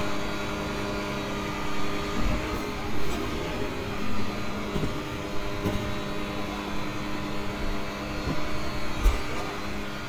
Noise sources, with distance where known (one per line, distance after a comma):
unidentified powered saw, near